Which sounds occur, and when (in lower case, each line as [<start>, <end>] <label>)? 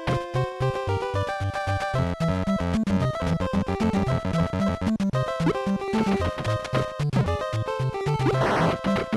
[0.00, 9.15] music
[0.00, 9.15] video game sound